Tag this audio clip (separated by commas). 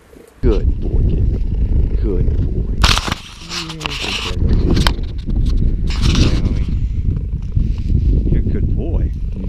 cheetah chirrup